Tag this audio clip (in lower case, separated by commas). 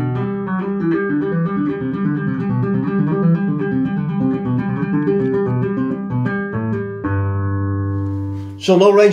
music, musical instrument, guitar, plucked string instrument